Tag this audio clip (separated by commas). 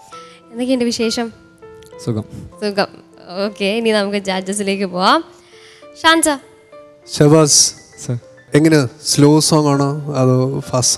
Music, Speech